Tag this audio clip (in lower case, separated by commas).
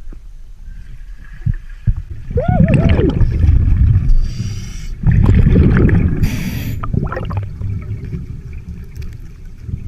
scuba diving